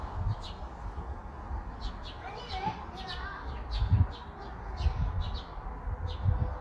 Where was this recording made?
in a park